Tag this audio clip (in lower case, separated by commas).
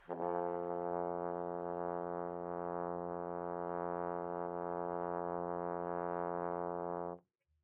brass instrument, music, musical instrument